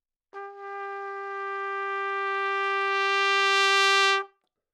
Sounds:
Music, Musical instrument, Brass instrument, Trumpet

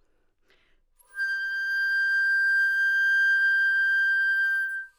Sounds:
woodwind instrument, Music, Musical instrument

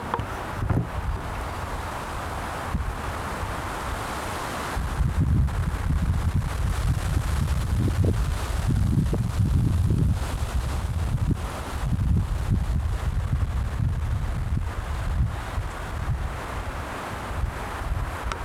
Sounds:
Wind

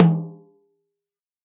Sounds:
Music, Musical instrument, Drum, Snare drum, Percussion

